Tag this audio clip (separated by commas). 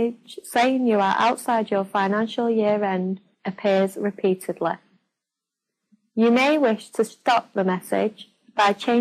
Speech